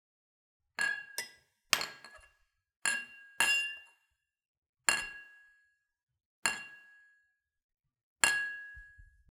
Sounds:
clink, Glass

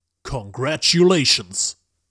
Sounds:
Human voice, Speech, man speaking

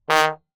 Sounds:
Music, Brass instrument, Musical instrument

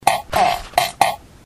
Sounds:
Fart

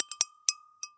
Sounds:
dishes, pots and pans, Domestic sounds

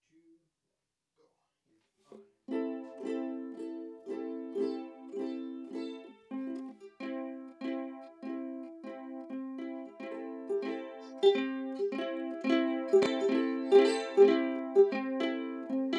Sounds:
Musical instrument, Plucked string instrument, Music

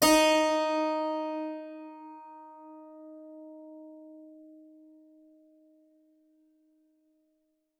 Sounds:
Musical instrument, Music, Keyboard (musical)

